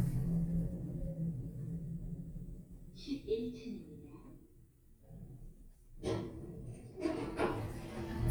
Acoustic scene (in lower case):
elevator